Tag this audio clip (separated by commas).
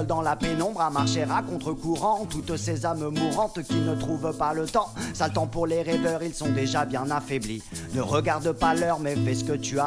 Music